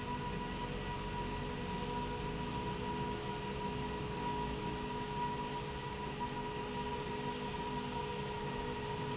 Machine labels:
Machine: slide rail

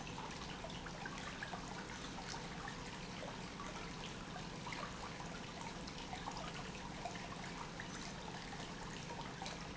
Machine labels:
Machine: pump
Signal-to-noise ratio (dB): 6 dB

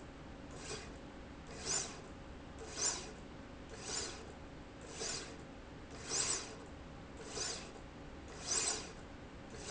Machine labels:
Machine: slide rail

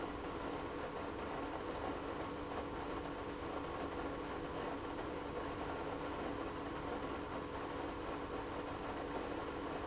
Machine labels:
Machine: pump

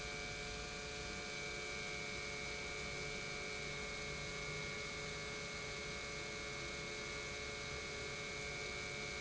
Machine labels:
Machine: pump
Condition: normal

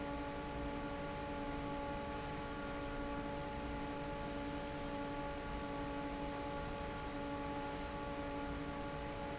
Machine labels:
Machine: fan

